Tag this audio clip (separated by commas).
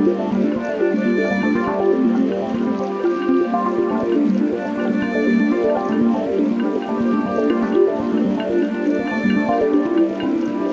Water, Music